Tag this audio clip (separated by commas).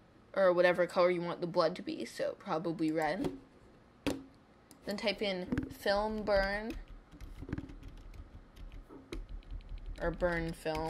Speech